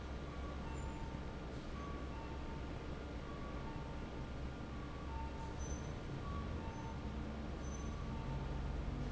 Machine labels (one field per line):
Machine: fan